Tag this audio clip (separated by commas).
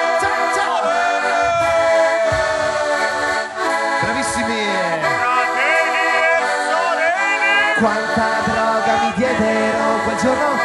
Music, Orchestra, Radio